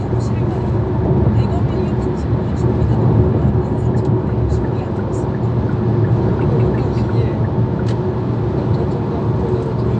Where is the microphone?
in a car